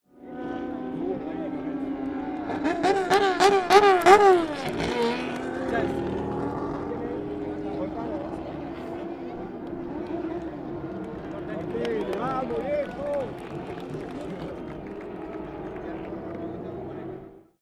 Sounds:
vehicle, motor vehicle (road), engine, car, race car, accelerating, crowd, human group actions

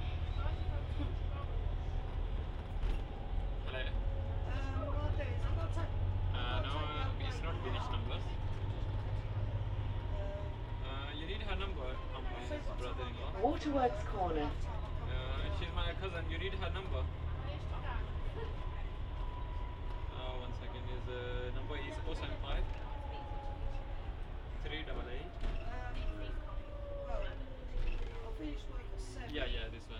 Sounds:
bus, vehicle, motor vehicle (road)

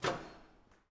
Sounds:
domestic sounds, microwave oven

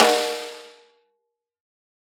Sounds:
snare drum, music, musical instrument, drum, percussion

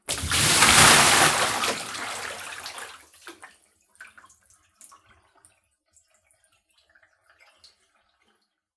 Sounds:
domestic sounds, liquid, bathtub (filling or washing), splash

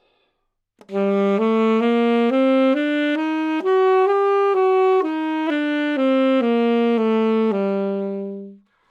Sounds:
music, musical instrument, wind instrument

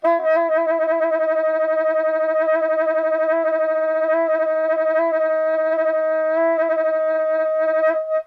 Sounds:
woodwind instrument, music, musical instrument

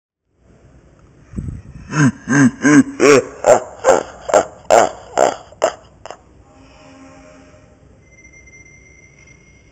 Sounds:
human voice, laughter

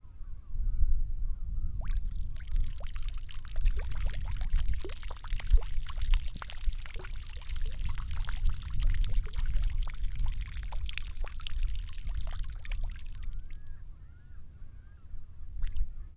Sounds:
liquid

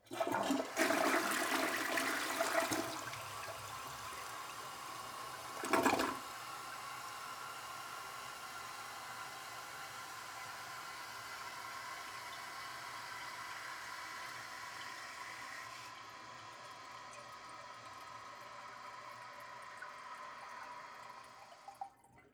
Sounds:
toilet flush, home sounds

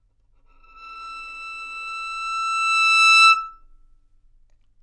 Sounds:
music, bowed string instrument, musical instrument

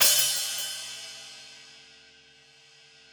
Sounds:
cymbal, music, musical instrument, hi-hat, crash cymbal, percussion

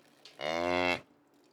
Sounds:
animal, livestock

